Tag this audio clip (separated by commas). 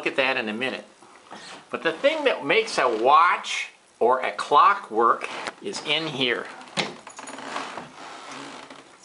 Speech